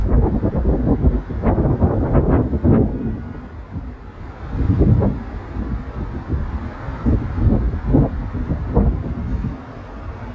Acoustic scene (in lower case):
street